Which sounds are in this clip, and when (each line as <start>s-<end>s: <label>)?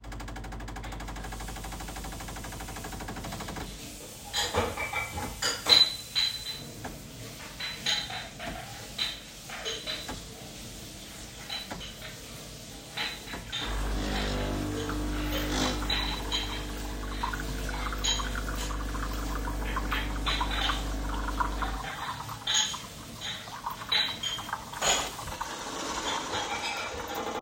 0.0s-23.6s: coffee machine
1.1s-27.4s: running water
4.3s-27.4s: cutlery and dishes